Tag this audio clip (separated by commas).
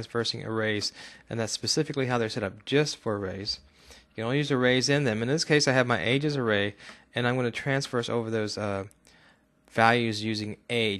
Speech